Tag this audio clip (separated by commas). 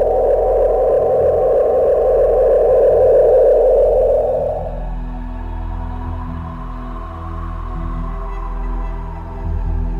Music, Video game music